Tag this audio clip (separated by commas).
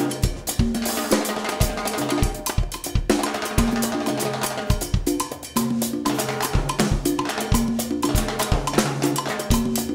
playing timbales